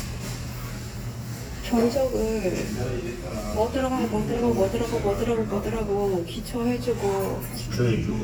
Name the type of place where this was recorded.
restaurant